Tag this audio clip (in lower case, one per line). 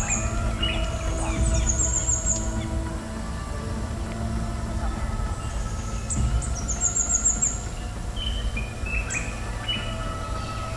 chirp
music
bird